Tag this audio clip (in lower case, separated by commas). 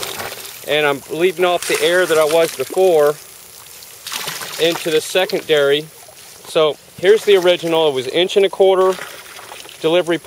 speech